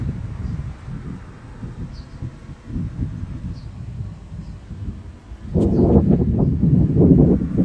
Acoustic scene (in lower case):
park